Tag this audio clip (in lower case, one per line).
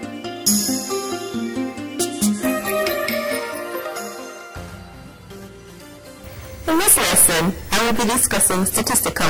speech
music